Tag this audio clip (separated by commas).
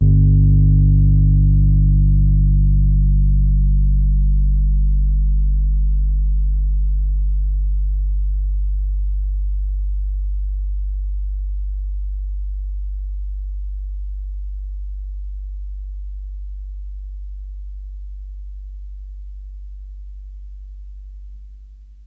Musical instrument, Keyboard (musical), Piano, Music